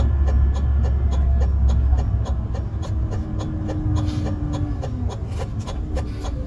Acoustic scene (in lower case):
bus